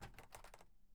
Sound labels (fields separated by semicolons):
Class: window; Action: opening; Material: wooden